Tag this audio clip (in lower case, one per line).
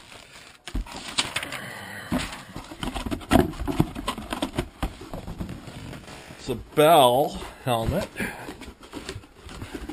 speech